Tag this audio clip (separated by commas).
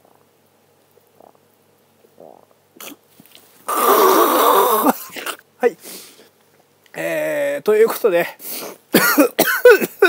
people gargling